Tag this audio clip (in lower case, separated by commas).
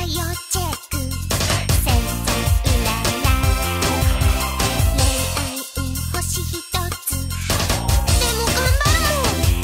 music